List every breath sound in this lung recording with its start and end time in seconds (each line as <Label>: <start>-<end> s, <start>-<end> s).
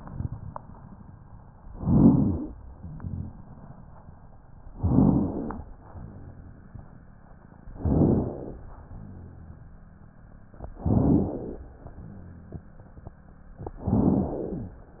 Inhalation: 1.71-2.52 s, 4.76-5.58 s, 7.76-8.58 s, 10.81-11.63 s, 13.83-14.65 s
Crackles: 1.71-2.52 s, 4.76-5.58 s, 7.76-8.58 s, 10.81-11.63 s, 13.83-14.65 s